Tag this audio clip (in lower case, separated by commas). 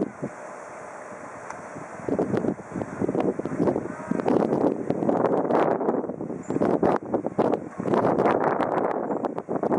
fixed-wing aircraft, wind, vehicle